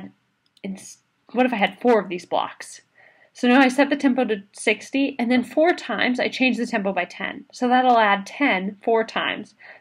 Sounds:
speech

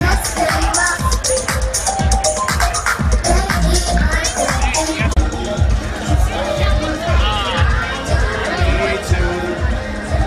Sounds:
speech, music

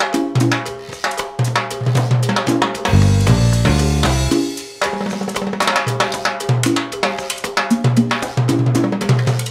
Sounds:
playing timbales

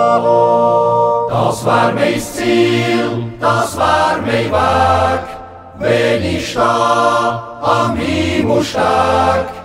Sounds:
yodelling

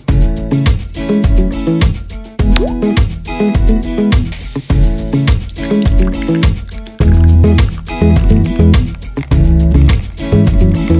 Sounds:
music

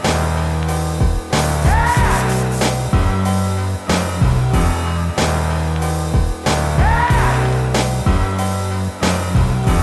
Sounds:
drum, drum kit

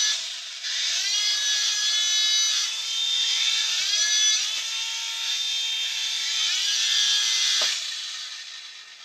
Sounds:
speech, inside a small room

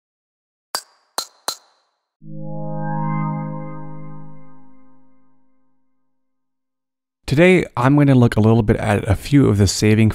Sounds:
speech, music

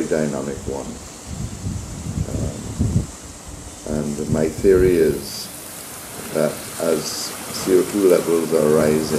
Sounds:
speech

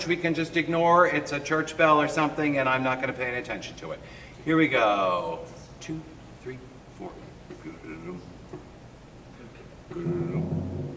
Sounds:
speech

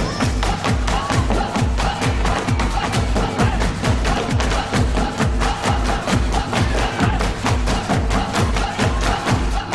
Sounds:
tap dancing

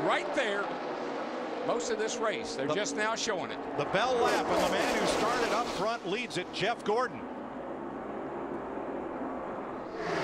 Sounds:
vehicle, car, speech, auto racing

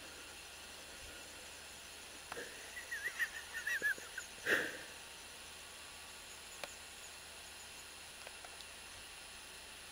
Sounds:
bird

